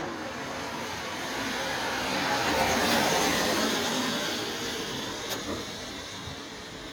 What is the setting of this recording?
residential area